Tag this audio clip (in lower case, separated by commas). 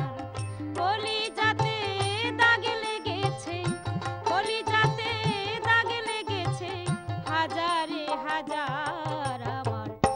music, female singing